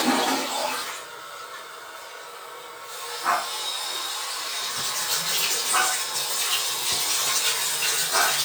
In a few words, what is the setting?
restroom